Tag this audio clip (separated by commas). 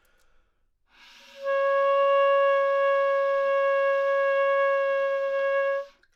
Musical instrument, woodwind instrument, Music